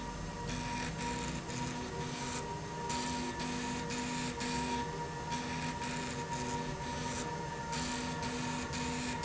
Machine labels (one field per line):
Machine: slide rail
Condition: abnormal